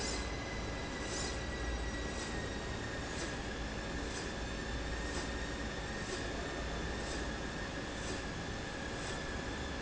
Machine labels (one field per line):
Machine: slide rail